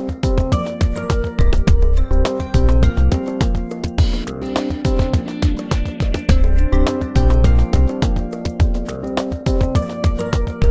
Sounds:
Music

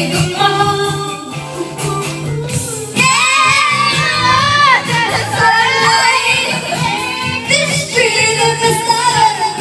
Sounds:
Music, Choir, Female singing

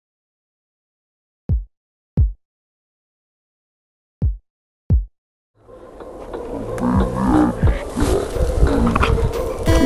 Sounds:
Music

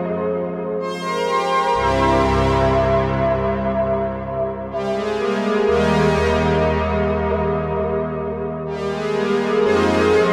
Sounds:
Music

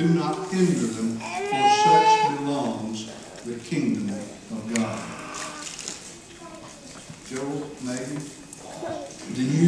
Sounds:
Male speech, Speech

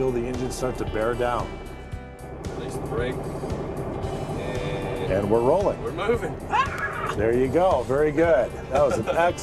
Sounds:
Vehicle, Truck, Music, Speech

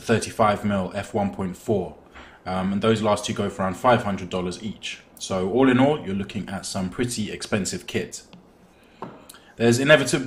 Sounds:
Speech

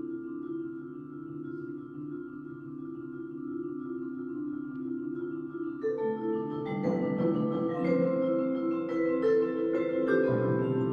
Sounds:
Musical instrument, Vibraphone, Percussion, Marimba, Timpani, Music, Classical music

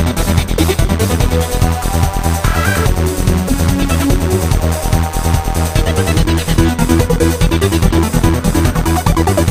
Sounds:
Music, Techno

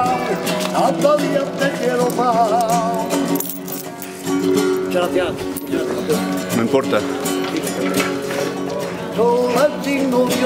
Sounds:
Guitar, Plucked string instrument, Music, Flamenco, Musical instrument, Strum, Speech

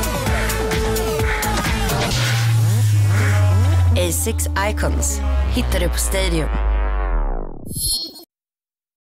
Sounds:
Music, Speech

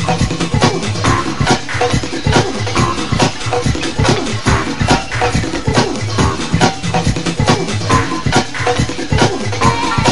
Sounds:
Electronic music, Blues, Music, Techno

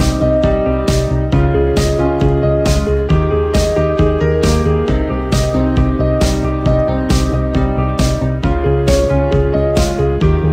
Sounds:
Musical instrument, Music, Guitar

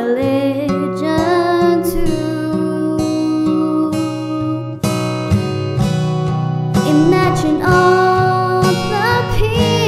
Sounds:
child singing

